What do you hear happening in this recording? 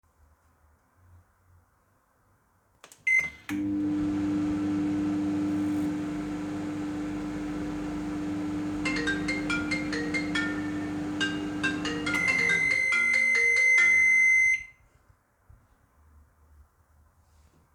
I started the microwave and while it was running a phone notification rang nearby.